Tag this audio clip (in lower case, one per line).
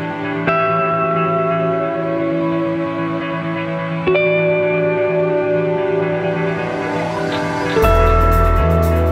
music